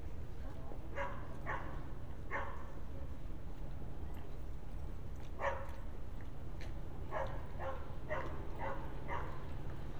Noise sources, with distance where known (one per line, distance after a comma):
dog barking or whining